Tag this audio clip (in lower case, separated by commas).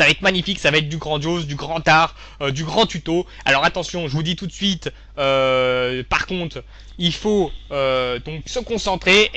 speech